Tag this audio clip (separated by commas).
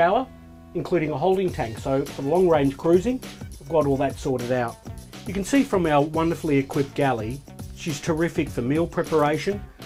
Music, Speech